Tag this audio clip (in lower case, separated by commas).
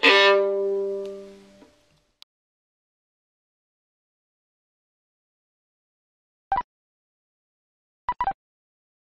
music, musical instrument, violin